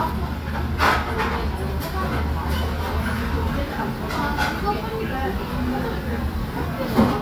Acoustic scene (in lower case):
restaurant